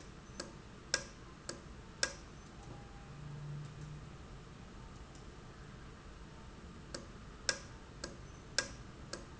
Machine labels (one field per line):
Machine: valve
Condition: normal